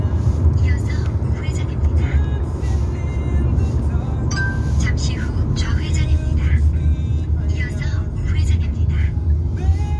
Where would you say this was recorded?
in a car